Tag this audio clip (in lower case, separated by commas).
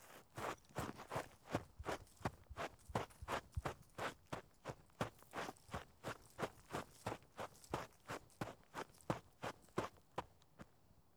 run